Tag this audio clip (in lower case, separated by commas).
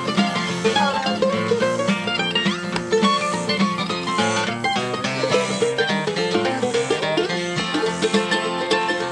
music, bluegrass, banjo